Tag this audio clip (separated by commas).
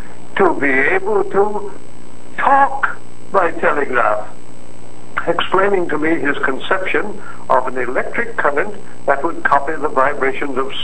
Speech